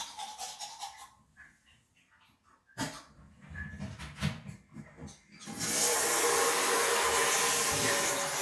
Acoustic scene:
restroom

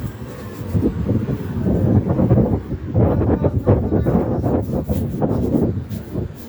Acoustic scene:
residential area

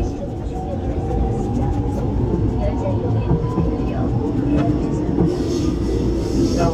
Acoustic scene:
subway train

